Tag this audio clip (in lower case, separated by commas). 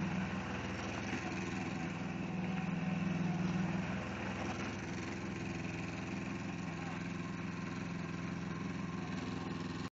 speech